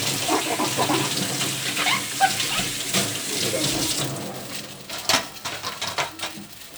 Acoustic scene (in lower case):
kitchen